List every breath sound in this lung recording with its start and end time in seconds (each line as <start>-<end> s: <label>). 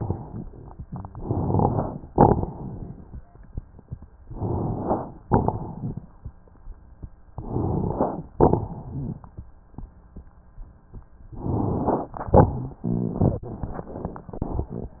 1.12-2.05 s: inhalation
1.12-2.07 s: crackles
2.09-2.56 s: crackles
2.09-3.21 s: exhalation
4.31-5.14 s: inhalation
4.31-5.14 s: crackles
5.29-6.13 s: exhalation
5.29-6.13 s: crackles
7.36-8.29 s: inhalation
7.36-8.29 s: crackles
8.36-9.17 s: crackles
8.36-9.29 s: exhalation
11.39-12.20 s: inhalation
11.39-12.20 s: crackles
12.27-12.62 s: crackles
12.27-12.79 s: exhalation